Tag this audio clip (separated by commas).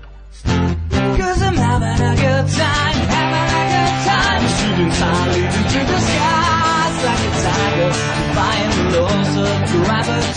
Music, Female singing